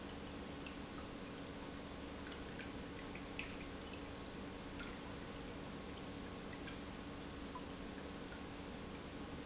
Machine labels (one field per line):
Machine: pump